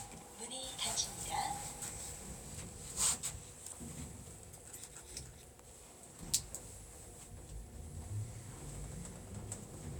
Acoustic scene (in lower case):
elevator